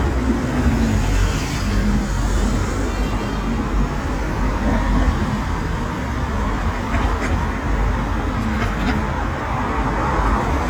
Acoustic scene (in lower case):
street